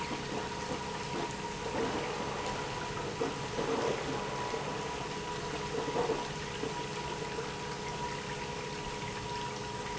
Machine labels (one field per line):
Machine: pump